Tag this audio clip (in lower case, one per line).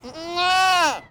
animal
livestock